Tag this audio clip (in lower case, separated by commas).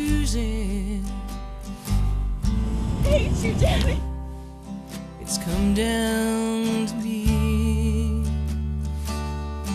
music, speech, sad music, lullaby, theme music